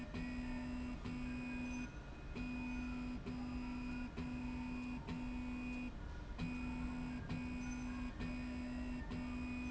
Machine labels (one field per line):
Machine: slide rail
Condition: normal